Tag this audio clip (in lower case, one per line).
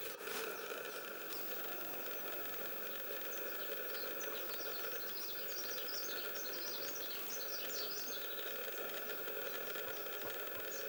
bird